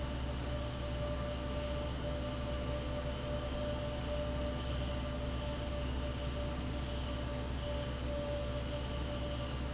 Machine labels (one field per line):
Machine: fan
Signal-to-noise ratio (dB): -6 dB